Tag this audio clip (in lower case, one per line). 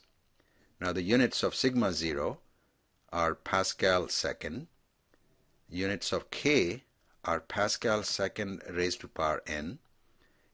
speech synthesizer
speech